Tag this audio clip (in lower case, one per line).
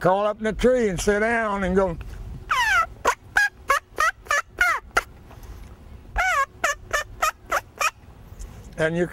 speech
outside, rural or natural